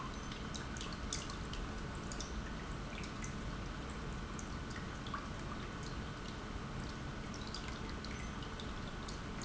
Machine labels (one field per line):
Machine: pump